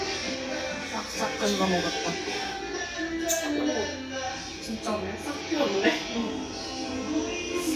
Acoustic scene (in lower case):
restaurant